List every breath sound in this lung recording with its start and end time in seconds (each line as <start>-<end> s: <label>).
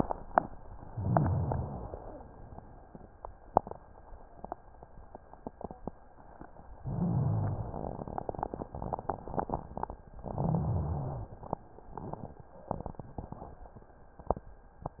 0.84-2.07 s: inhalation
0.84-2.07 s: rhonchi
6.77-7.95 s: inhalation
6.77-7.95 s: rhonchi
10.22-11.40 s: inhalation
10.22-11.40 s: rhonchi